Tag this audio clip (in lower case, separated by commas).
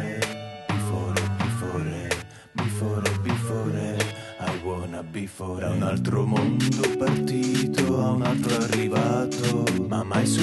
soul music, music, background music